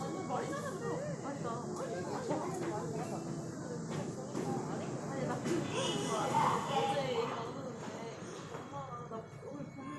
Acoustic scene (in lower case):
subway train